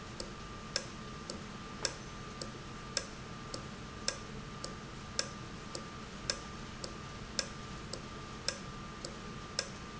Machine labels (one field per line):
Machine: valve